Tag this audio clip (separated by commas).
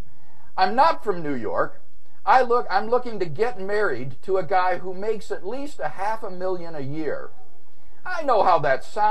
Speech